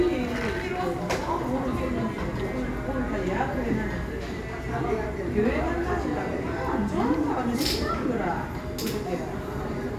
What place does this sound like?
cafe